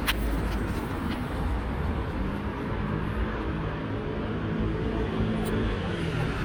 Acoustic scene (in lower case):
street